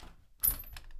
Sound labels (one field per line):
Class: window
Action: opening